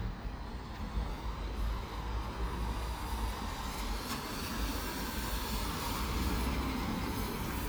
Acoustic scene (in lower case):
residential area